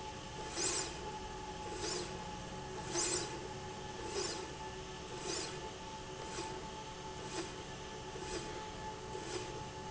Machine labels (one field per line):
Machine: slide rail